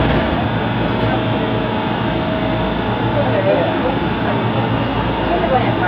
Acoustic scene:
subway train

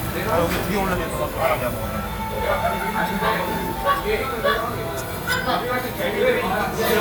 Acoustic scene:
crowded indoor space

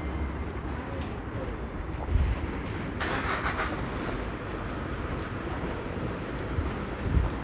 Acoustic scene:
residential area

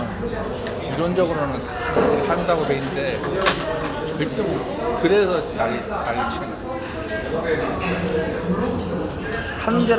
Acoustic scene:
restaurant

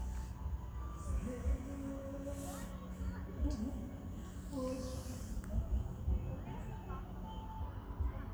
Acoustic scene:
park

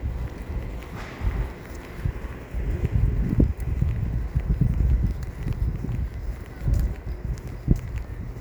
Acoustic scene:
residential area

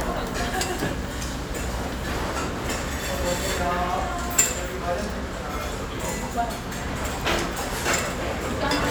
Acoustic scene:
restaurant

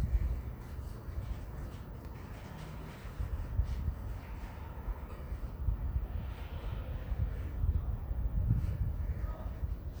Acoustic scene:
residential area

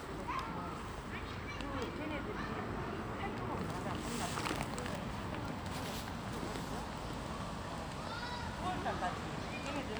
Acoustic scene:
residential area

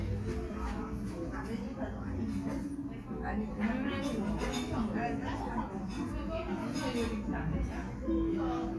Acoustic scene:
cafe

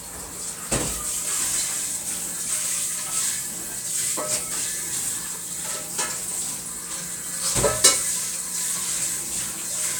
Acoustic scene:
kitchen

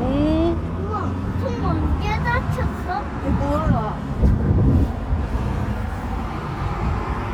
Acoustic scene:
street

